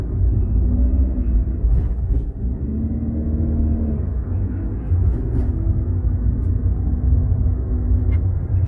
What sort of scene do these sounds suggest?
car